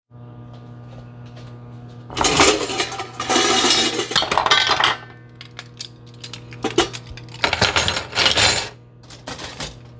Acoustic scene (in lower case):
kitchen